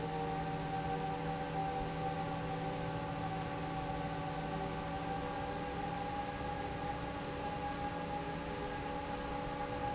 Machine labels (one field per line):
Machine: fan